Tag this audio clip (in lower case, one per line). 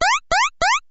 alarm